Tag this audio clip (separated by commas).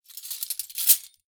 silverware, Domestic sounds